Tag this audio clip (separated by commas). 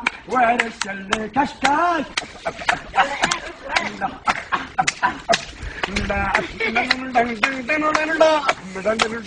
Male singing